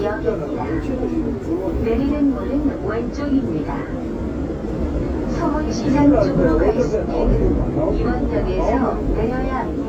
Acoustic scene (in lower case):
subway train